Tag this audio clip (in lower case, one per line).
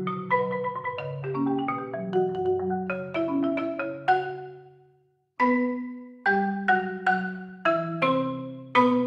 music
marimba
musical instrument